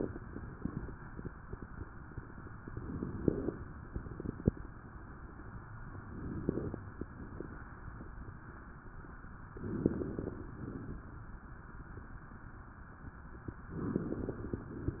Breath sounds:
2.68-3.72 s: inhalation
2.68-3.72 s: crackles
5.98-7.02 s: inhalation
5.98-7.02 s: crackles
9.53-10.57 s: inhalation
9.53-10.57 s: crackles
13.70-14.74 s: inhalation
13.70-14.74 s: crackles

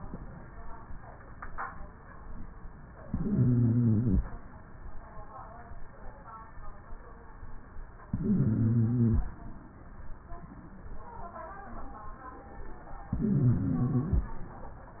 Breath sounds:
3.05-4.26 s: inhalation
3.05-4.26 s: wheeze
8.08-9.29 s: inhalation
8.08-9.29 s: wheeze
13.13-14.34 s: inhalation
13.13-14.34 s: wheeze

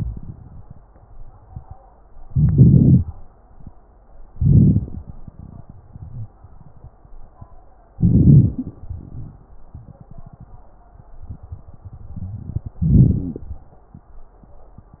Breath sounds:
2.23-3.04 s: inhalation
4.30-5.04 s: inhalation
4.30-5.04 s: crackles
6.00-6.35 s: wheeze
7.96-8.80 s: inhalation
7.96-8.80 s: crackles
8.82-9.58 s: exhalation
12.84-13.50 s: inhalation

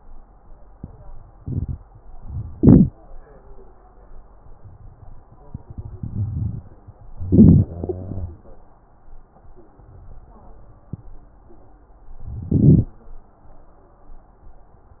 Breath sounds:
2.56-2.93 s: inhalation
7.20-7.65 s: inhalation
7.70-8.49 s: exhalation
7.70-8.49 s: wheeze
12.47-12.92 s: inhalation

